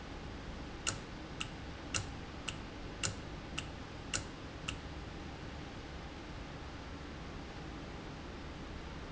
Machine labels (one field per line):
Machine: valve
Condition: normal